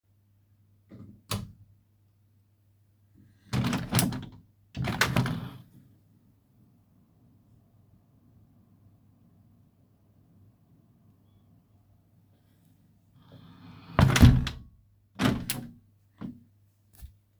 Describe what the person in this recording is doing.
In the office I turned on my main light to see better. Then i opened the window to let in some fresh air.